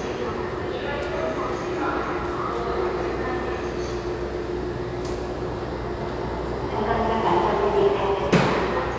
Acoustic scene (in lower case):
subway station